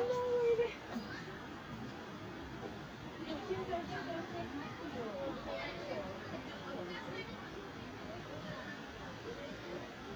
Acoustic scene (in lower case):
residential area